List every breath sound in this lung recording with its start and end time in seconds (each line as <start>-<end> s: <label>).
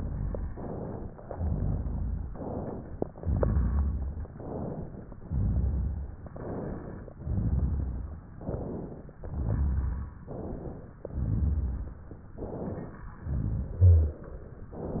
0.00-0.48 s: exhalation
0.52-1.13 s: inhalation
1.25-2.30 s: exhalation
2.30-3.07 s: inhalation
3.19-4.24 s: exhalation
4.28-5.19 s: inhalation
5.25-6.21 s: exhalation
6.26-7.16 s: inhalation
7.19-8.21 s: exhalation
8.36-9.14 s: inhalation
9.23-10.19 s: exhalation
10.24-11.06 s: inhalation
11.12-12.09 s: exhalation
12.29-13.16 s: inhalation
13.22-14.19 s: exhalation
14.68-15.00 s: inhalation